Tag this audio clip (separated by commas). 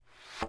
Thump